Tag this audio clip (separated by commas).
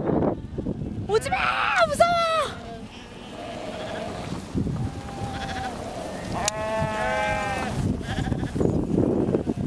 sheep bleating, Speech, Sheep, Bleat